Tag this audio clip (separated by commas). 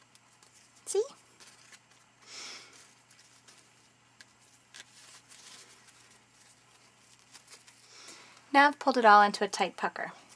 Speech